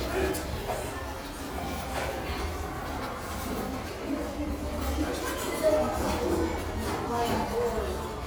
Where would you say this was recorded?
in a restaurant